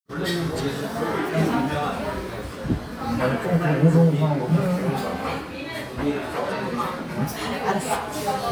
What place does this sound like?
crowded indoor space